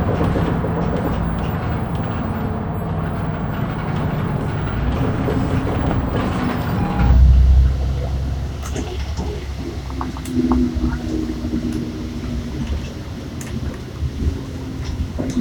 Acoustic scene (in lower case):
bus